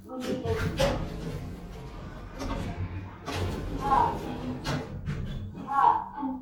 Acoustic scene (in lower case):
elevator